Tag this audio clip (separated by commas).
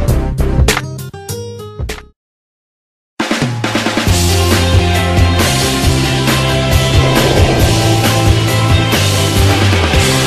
Music